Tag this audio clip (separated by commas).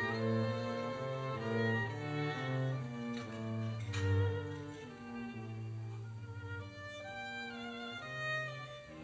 String section